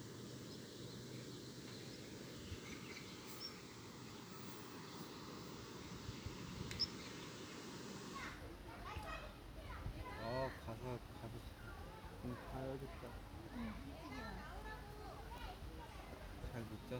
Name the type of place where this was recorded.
park